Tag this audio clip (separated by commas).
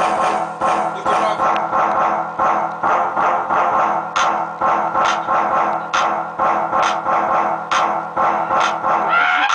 Speech, Music